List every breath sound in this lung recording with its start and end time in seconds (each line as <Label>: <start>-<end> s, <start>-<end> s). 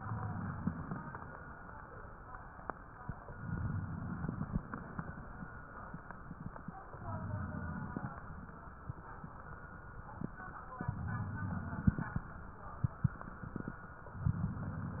Inhalation: 0.00-1.14 s, 3.28-4.76 s, 6.88-8.30 s, 10.82-12.16 s, 14.20-15.00 s